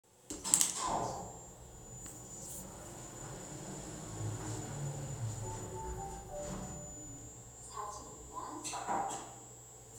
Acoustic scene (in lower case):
elevator